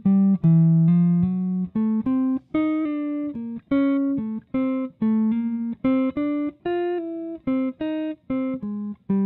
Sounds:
Guitar, Music, Plucked string instrument, Musical instrument

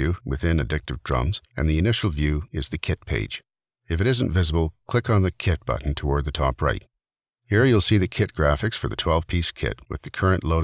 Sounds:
Speech

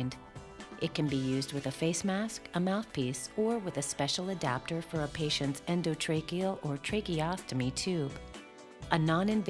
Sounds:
Speech, Music

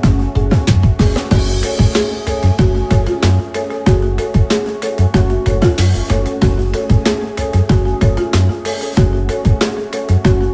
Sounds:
Music

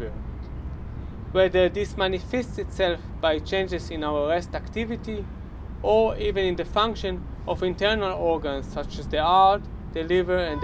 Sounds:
Speech

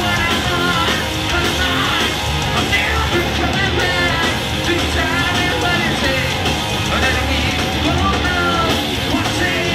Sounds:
Exciting music, Independent music, Jazz, Music

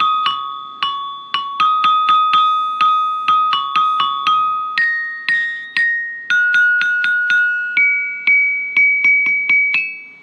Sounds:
Musical instrument, xylophone, Music

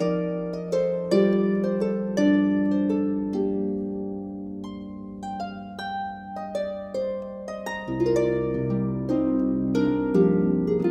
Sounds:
Musical instrument, Music, Harp

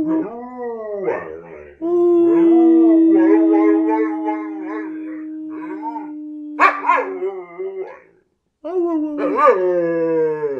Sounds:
dog howling

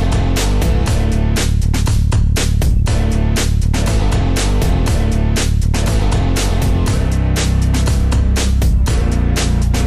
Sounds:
Music

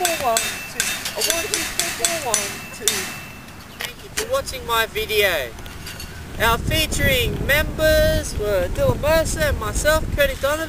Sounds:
thwack

